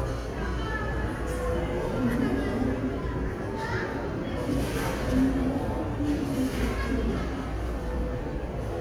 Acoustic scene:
crowded indoor space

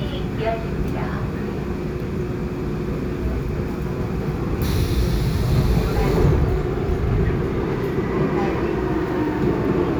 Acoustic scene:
subway train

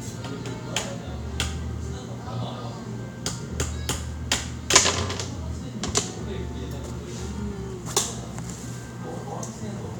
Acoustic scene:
cafe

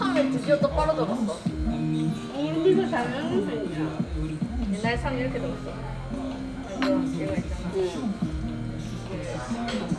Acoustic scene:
crowded indoor space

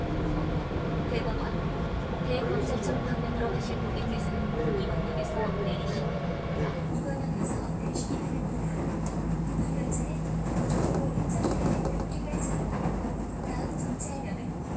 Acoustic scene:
subway train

